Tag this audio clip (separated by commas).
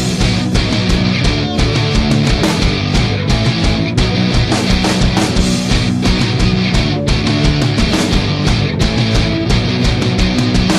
Music